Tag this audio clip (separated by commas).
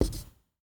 home sounds, Writing